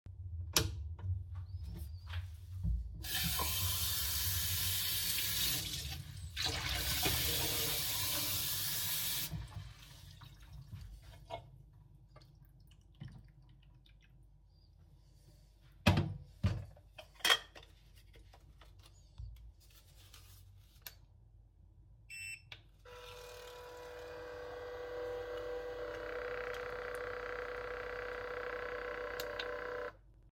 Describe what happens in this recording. I turned on the light switch, openend the sink to get water. Then I poured the water in the coffee machine and activated it.